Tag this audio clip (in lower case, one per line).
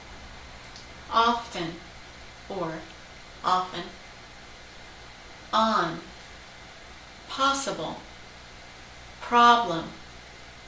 speech